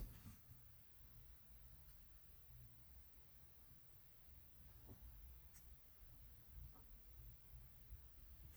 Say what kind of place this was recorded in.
car